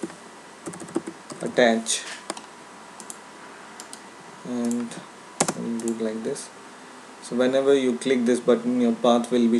A man talks while typing and clicking